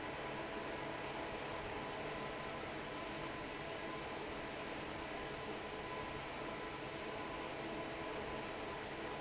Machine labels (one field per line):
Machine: fan